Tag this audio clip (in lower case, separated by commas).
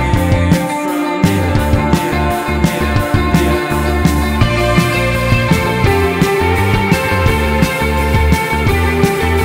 music